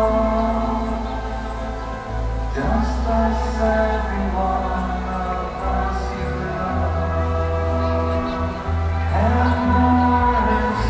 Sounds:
independent music, christmas music, music

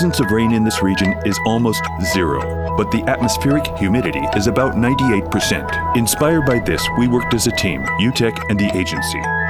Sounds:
music, speech

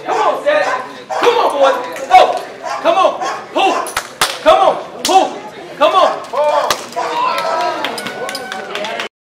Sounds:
speech

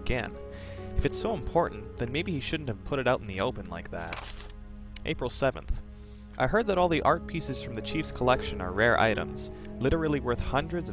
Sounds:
speech, music

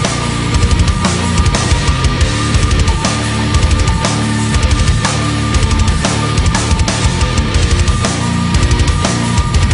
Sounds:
music, soundtrack music

